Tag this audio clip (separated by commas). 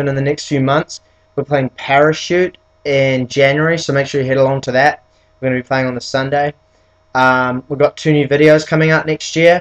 Speech